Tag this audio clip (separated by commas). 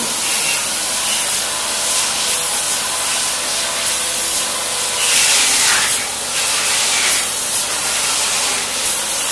Spray